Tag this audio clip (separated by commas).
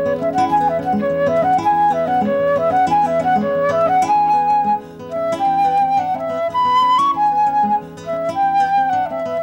Music, Flute, playing flute, Guitar